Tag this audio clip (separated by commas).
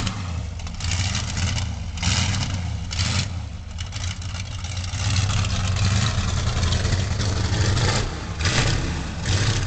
Vehicle